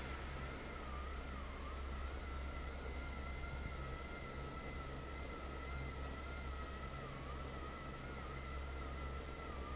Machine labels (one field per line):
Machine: fan